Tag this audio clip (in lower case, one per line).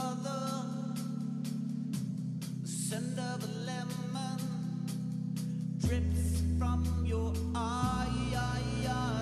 music